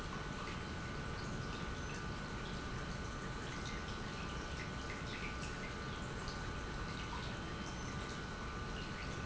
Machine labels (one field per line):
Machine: pump